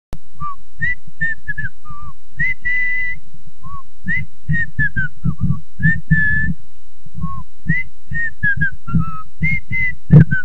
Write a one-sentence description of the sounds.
A person whistling